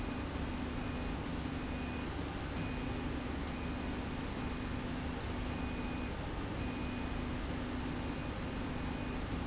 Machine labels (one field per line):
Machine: slide rail